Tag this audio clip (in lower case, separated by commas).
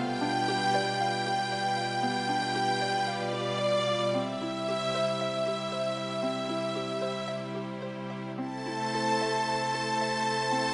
new-age music, music